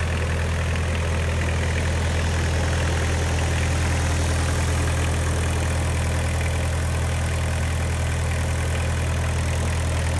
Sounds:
idling
vehicle
engine

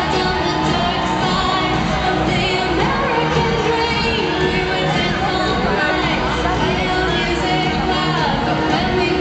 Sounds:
music
speech

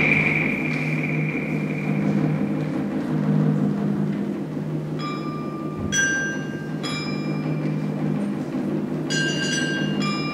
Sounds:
mallet percussion
xylophone
glockenspiel

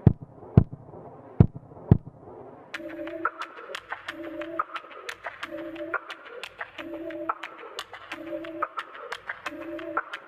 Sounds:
music

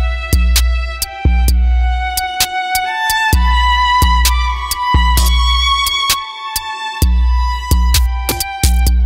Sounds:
music
musical instrument
fiddle

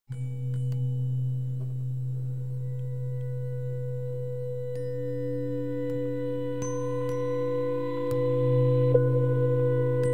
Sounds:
playing tuning fork

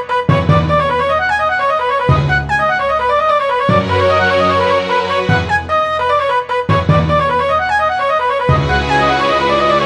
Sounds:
music

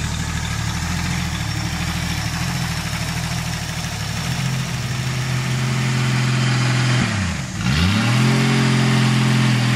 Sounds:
vehicle
motor vehicle (road)

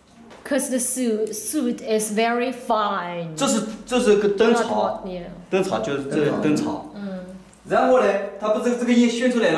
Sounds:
speech

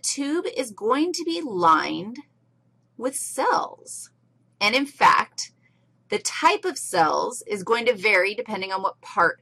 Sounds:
speech

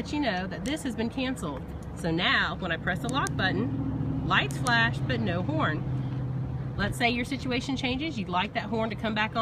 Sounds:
speech
outside, urban or man-made
vehicle

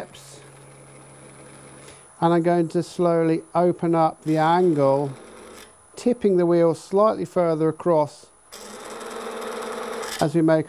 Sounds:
tools
speech

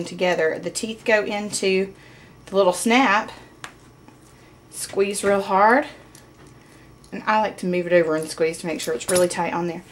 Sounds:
speech

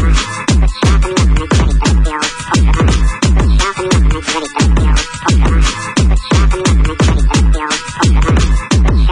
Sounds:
music
sound effect

